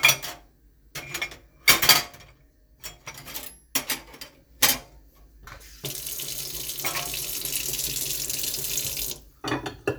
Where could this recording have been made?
in a kitchen